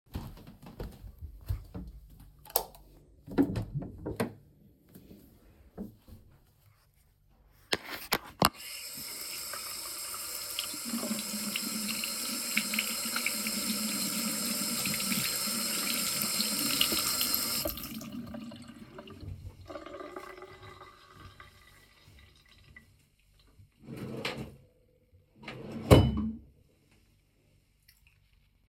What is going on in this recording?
I walked to the bathroom, turned on the light, opened the door, washed my hands and opened the drawer.